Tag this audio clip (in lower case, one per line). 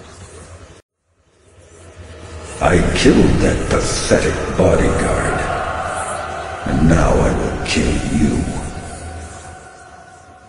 speech